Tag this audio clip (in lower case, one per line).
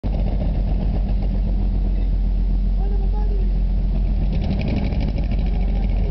speech